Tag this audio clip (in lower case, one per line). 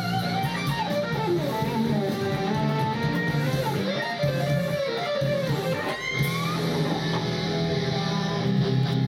musical instrument
guitar
strum
plucked string instrument
music